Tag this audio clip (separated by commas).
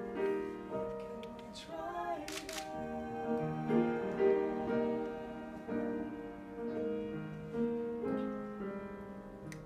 Classical music